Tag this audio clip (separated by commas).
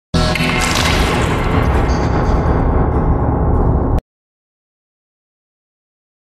Music